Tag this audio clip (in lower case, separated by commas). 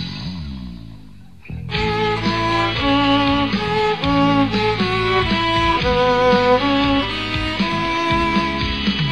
music, violin, musical instrument